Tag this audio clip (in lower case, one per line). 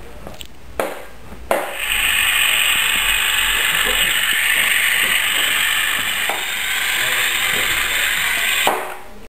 speech